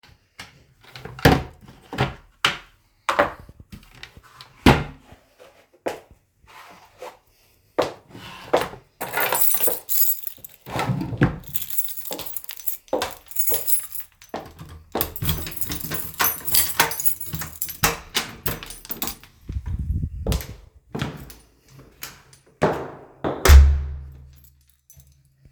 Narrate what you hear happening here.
I opened the wardrobe, took out my shoes and put them on. Then I picked up my keys, unlocked the door and opened it. I walked out and closed the door behind me.